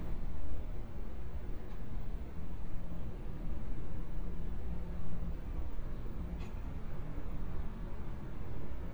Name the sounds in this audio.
background noise